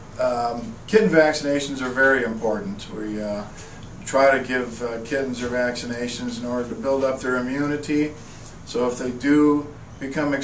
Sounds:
speech

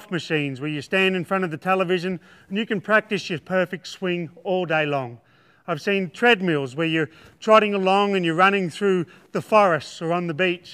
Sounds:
speech

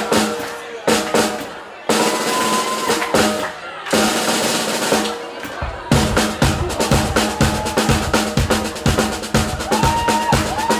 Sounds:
rimshot
percussion
drum roll
drum kit
bass drum
snare drum
drum

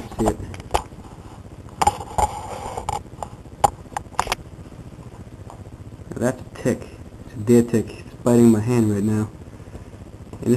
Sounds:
speech

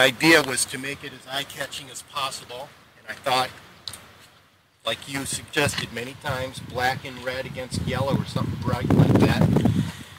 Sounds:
speech

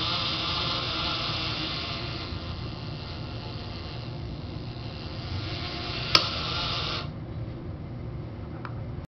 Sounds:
single-lens reflex camera

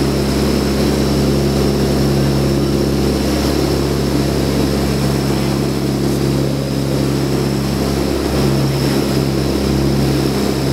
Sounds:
vehicle

